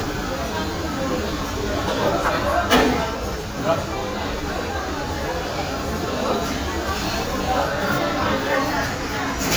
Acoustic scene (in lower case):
restaurant